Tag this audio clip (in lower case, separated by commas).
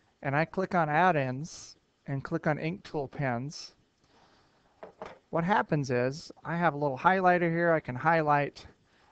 speech